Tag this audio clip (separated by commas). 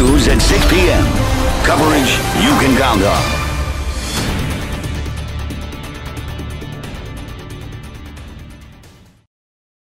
Music, Speech